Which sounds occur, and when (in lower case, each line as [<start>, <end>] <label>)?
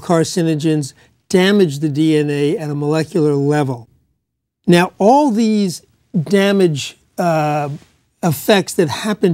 [0.00, 1.06] male speech
[0.00, 9.33] background noise
[1.28, 3.81] male speech
[4.63, 5.85] male speech
[6.09, 6.96] male speech
[7.12, 8.06] surface contact
[7.13, 7.82] male speech
[8.18, 9.33] male speech